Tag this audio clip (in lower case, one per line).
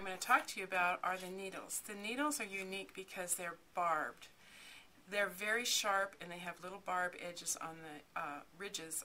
speech